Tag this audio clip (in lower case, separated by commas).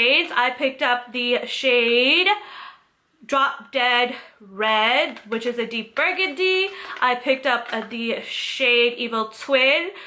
speech